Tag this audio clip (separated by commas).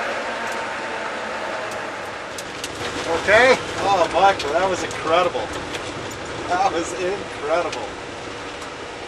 Speech